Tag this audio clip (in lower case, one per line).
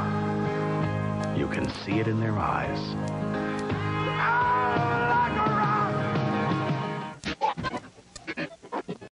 speech
music